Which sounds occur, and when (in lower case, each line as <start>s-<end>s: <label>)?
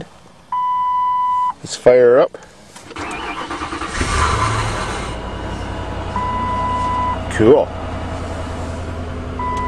0.0s-9.6s: background noise
0.5s-1.5s: beep
1.6s-2.2s: man speaking
2.3s-2.5s: generic impact sounds
2.7s-3.2s: generic impact sounds
2.9s-9.6s: medium engine (mid frequency)
2.9s-5.0s: engine starting
6.1s-7.1s: beep
7.3s-7.7s: man speaking
9.5s-9.6s: tick